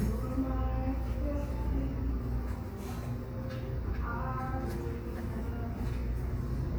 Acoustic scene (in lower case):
cafe